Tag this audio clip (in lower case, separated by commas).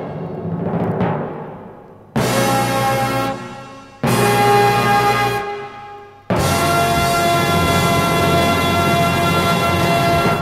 music, orchestra, timpani